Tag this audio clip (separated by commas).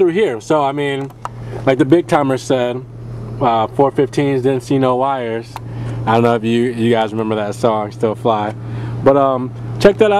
Vehicle